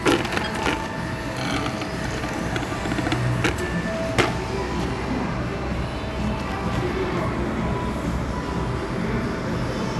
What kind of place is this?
cafe